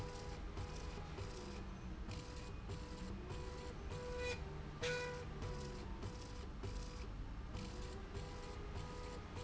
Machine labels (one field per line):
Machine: slide rail